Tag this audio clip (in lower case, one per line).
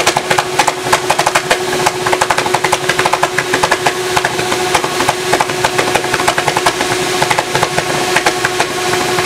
engine
idling